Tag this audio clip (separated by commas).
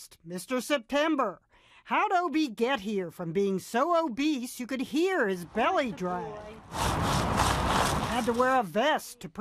Speech